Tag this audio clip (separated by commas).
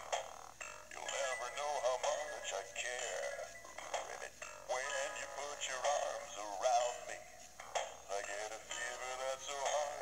Music, inside a small room